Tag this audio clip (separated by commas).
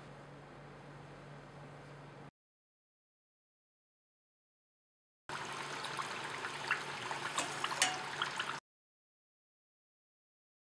Silence, Liquid, inside a small room